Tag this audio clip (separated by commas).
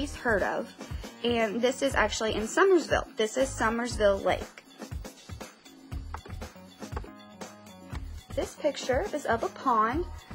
Speech, Music